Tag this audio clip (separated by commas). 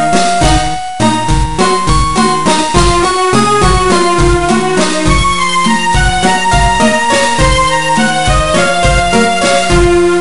Video game music, Music